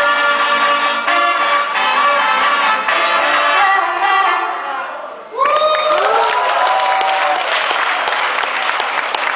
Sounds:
Music

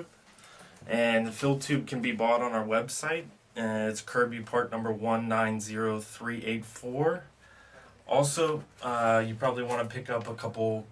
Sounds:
Speech

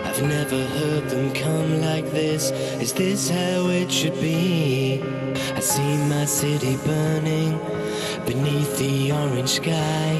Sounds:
Soundtrack music, Music

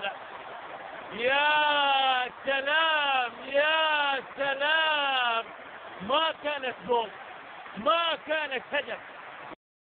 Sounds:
Speech

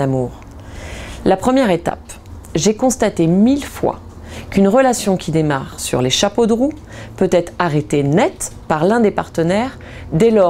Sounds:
Speech

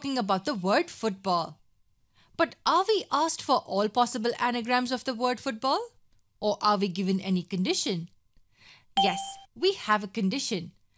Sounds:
Speech

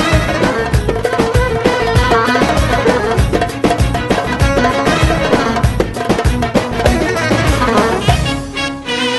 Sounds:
Dance music, Music, Middle Eastern music

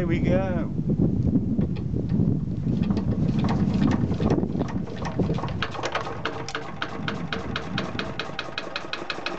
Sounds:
Engine starting, Engine, Medium engine (mid frequency), Idling, Speech

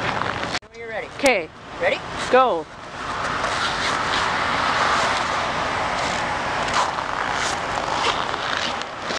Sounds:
Speech

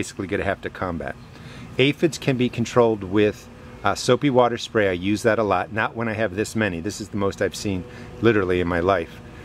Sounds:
Speech

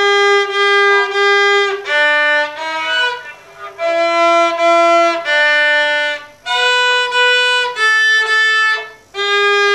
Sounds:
fiddle, Musical instrument, Music

